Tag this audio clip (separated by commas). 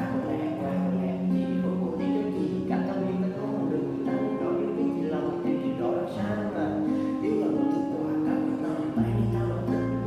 Plucked string instrument, Music, Guitar, Musical instrument, Acoustic guitar